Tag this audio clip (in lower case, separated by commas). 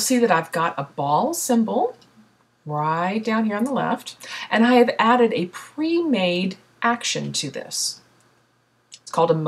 speech